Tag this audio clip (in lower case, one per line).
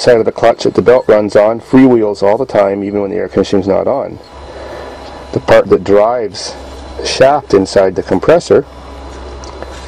speech